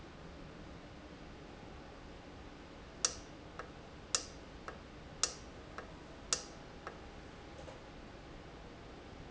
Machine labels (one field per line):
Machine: valve